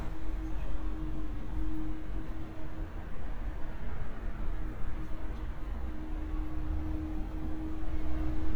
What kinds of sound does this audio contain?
large-sounding engine